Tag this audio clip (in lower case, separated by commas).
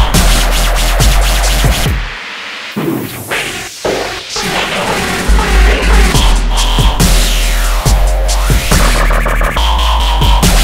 music, dubstep, electronic music